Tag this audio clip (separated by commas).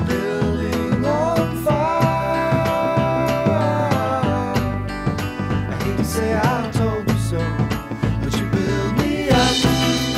Tender music, Music